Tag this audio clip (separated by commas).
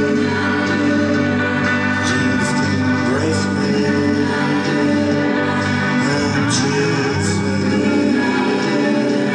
Music